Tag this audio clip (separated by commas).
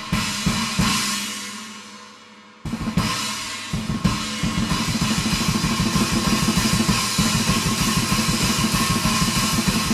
Music, Drum, Snare drum, Cymbal